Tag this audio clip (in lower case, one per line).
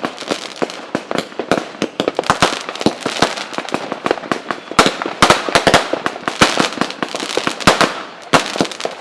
lighting firecrackers